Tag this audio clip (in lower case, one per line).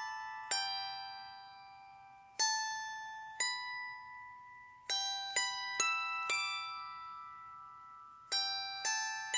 playing zither